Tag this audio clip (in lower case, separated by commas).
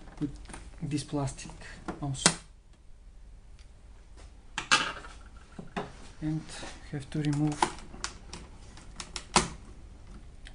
speech